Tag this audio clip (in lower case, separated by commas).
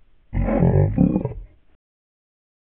animal, growling